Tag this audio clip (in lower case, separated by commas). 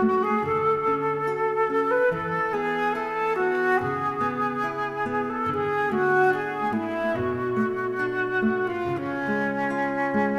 music